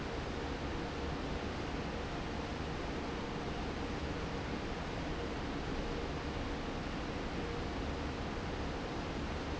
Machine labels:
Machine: fan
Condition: normal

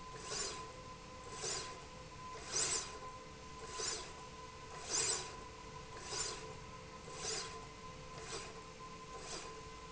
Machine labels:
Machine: slide rail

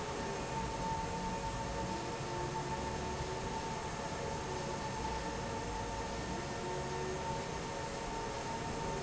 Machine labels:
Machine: fan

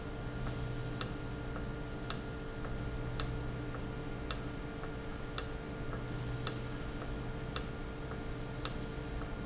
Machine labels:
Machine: valve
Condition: normal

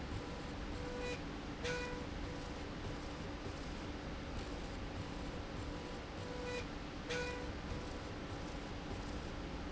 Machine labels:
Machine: slide rail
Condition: normal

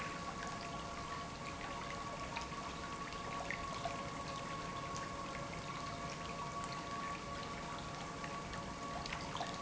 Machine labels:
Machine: pump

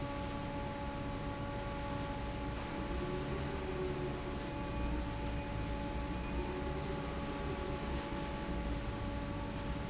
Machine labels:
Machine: fan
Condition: normal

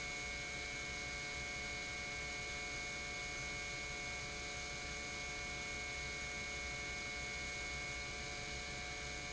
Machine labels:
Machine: pump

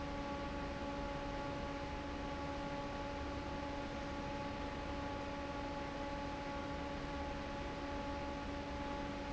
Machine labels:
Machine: fan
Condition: normal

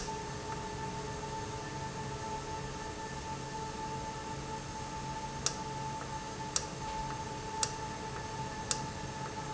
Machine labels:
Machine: valve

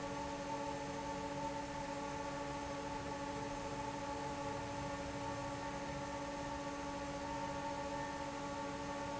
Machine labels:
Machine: fan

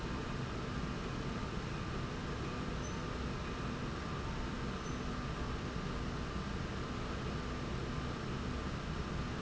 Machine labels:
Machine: slide rail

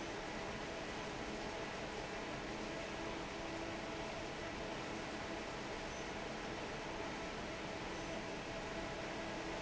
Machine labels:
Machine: fan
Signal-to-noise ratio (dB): 6 dB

